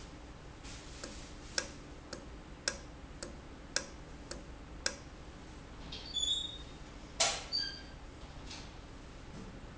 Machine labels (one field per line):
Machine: valve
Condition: normal